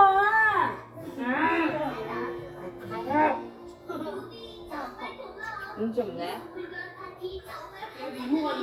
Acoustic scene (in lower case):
crowded indoor space